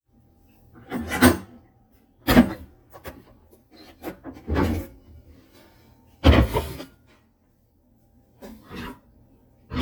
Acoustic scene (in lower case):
kitchen